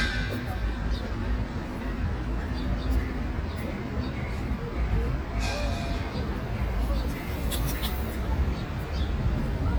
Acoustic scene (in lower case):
street